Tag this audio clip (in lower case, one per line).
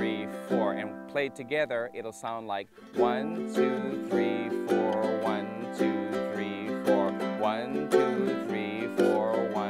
playing ukulele